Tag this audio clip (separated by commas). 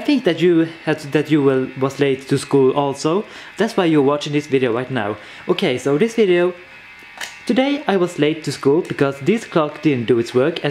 Speech